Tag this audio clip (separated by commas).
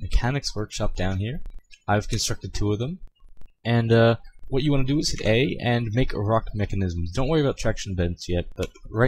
Speech